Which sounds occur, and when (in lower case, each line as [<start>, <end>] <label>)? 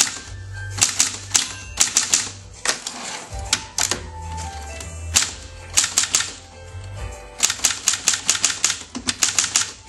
[0.00, 0.37] typewriter
[0.00, 9.85] music
[0.72, 1.51] typewriter
[1.75, 2.35] typewriter
[2.58, 4.01] typewriter
[4.36, 5.35] typewriter
[5.74, 6.40] typewriter
[7.34, 9.85] typewriter